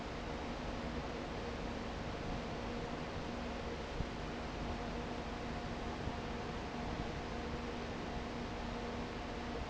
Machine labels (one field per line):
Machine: fan